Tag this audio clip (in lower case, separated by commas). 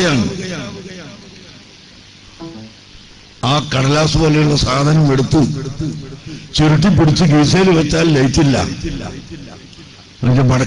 speech, male speech